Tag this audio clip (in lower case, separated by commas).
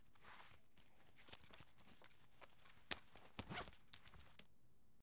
home sounds, zipper (clothing)